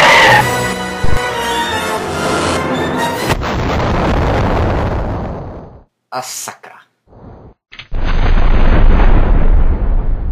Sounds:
Music, Speech

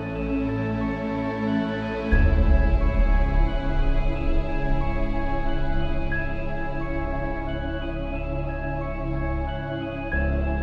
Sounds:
Music

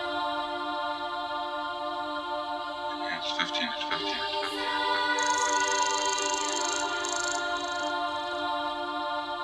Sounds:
Speech, Music

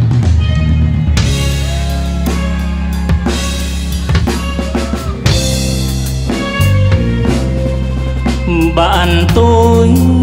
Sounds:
Music

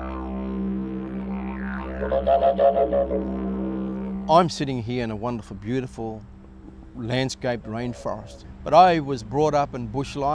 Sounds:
Didgeridoo

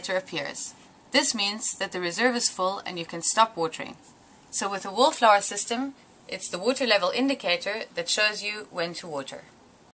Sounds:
Speech

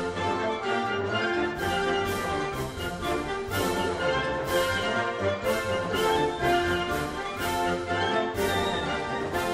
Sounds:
Music

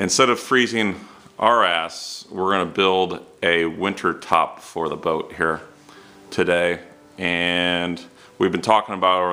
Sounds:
Music, Speech

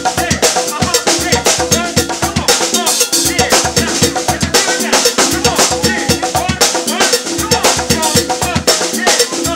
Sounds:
Bass drum, Percussion, Snare drum, Drum kit, Rimshot, Drum

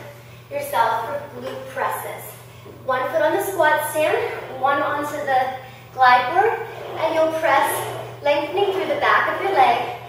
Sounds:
woman speaking, Speech

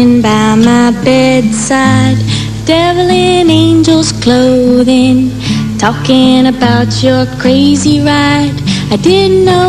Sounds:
Music

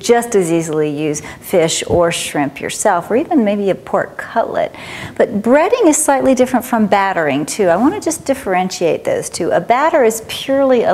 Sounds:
Speech

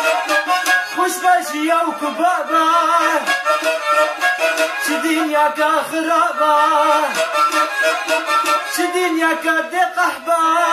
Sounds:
Music, Traditional music

